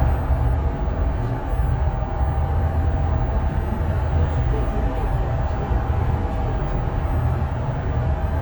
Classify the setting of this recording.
bus